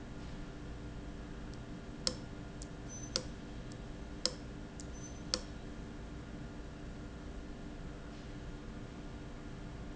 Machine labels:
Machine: valve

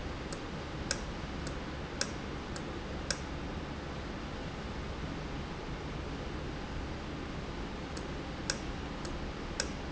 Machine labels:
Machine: valve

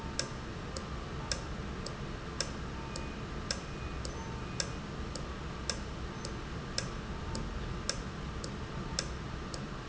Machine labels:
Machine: valve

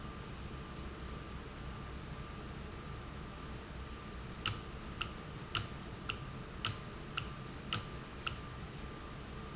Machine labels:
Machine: valve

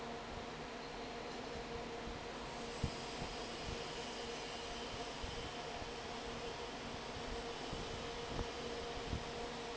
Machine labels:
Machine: fan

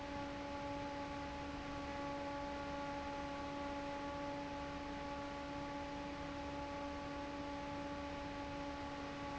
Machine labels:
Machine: fan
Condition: normal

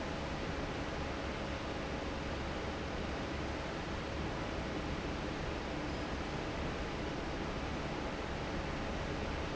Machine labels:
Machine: fan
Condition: normal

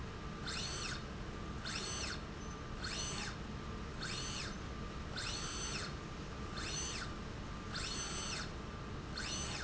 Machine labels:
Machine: slide rail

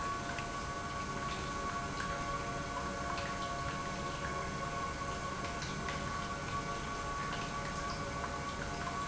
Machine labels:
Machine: pump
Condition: normal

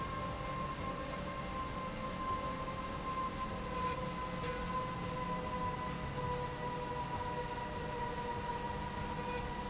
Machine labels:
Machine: slide rail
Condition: normal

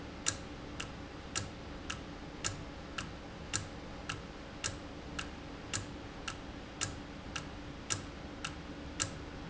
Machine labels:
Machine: valve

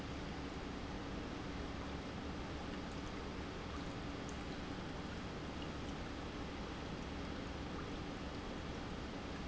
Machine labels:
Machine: pump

